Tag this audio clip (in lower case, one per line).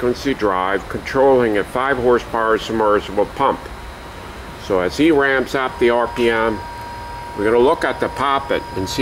inside a large room or hall
speech